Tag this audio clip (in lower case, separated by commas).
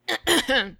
respiratory sounds, cough